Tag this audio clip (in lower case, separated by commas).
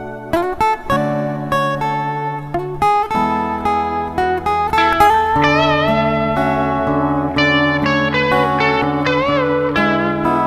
steel guitar, guitar, music